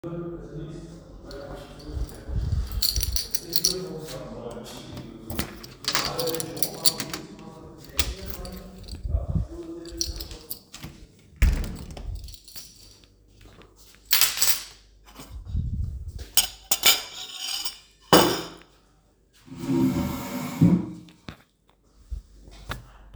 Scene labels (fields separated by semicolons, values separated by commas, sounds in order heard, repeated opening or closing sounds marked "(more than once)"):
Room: hallway, kitchen; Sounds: footsteps, keys, door (more than once), cutlery and dishes